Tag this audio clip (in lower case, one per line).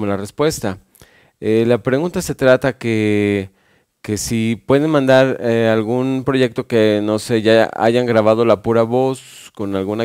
speech